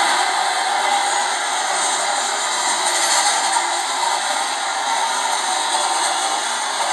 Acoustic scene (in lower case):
subway train